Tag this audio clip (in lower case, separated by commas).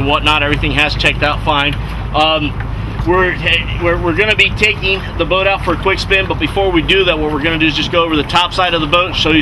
speech, vehicle, boat